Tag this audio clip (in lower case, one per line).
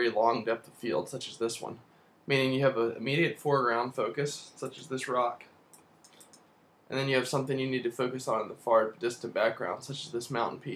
speech